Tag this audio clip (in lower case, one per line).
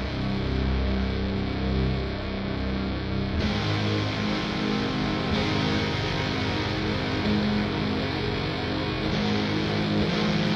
music